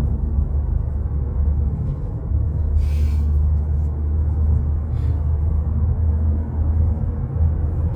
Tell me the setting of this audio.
car